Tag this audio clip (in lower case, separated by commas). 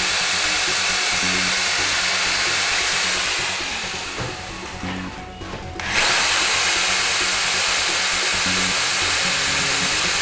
tools, music